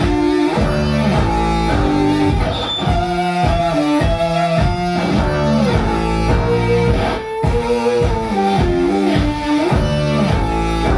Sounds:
Music

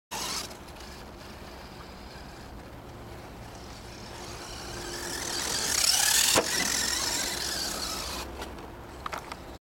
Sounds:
Car

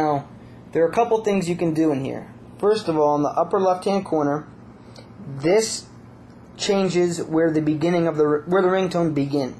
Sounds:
Speech

